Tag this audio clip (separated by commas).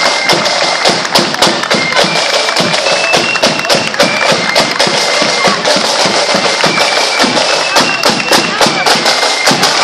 Music, Walk, Speech